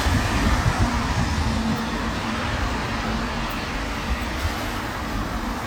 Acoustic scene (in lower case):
street